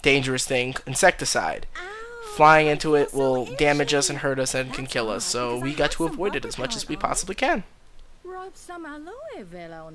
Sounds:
speech

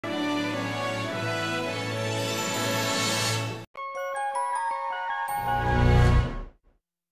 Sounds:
music, television

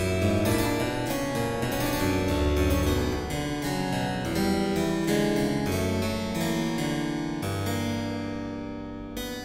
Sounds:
music, harpsichord

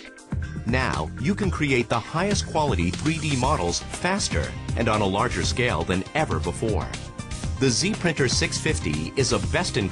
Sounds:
speech, music

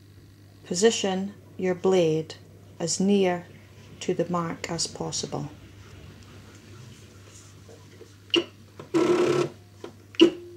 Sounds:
inside a small room, speech

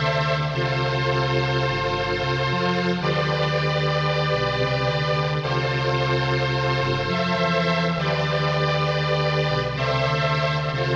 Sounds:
music

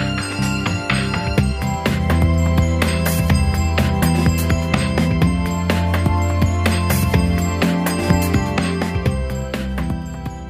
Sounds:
music

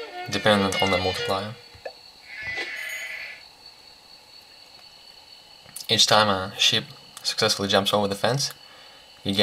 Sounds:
speech, sheep, bleat, music

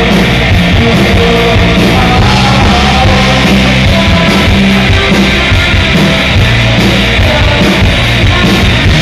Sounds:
music

